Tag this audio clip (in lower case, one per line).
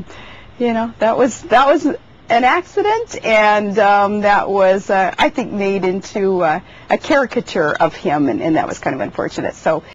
speech